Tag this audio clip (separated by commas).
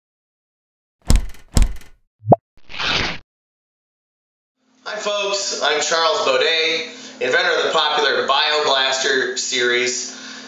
Sound effect